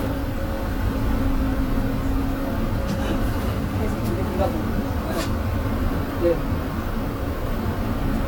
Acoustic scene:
bus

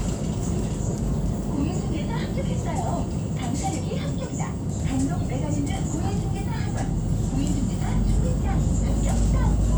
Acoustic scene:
bus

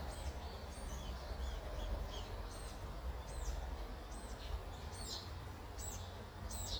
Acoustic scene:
park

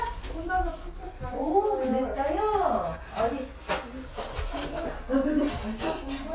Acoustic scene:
crowded indoor space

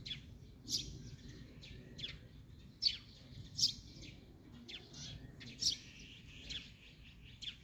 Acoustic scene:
park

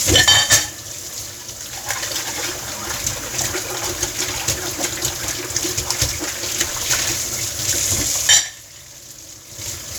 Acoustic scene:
kitchen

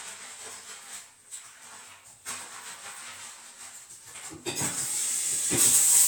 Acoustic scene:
restroom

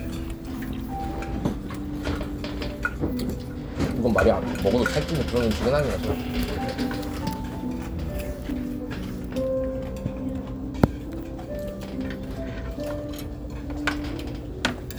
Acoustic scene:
restaurant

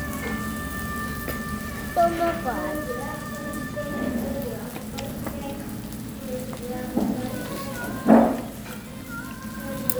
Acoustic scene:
restaurant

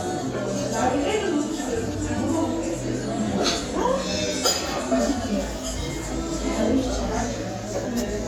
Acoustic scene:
restaurant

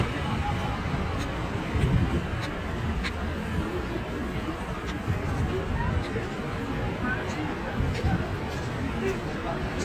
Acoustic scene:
street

